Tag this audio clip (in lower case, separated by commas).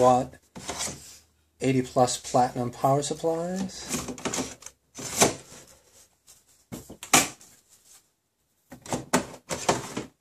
inside a small room, speech